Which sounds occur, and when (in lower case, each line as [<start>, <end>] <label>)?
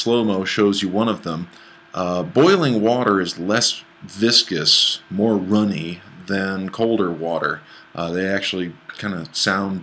[0.00, 1.46] man speaking
[0.00, 9.82] mechanisms
[1.50, 1.91] breathing
[1.88, 3.83] man speaking
[4.00, 4.97] man speaking
[5.09, 5.97] man speaking
[6.00, 6.18] breathing
[6.24, 7.56] man speaking
[7.64, 7.95] breathing
[7.93, 8.73] man speaking
[8.86, 9.82] man speaking